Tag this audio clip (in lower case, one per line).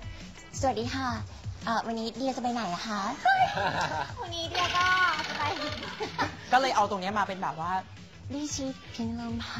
speech
music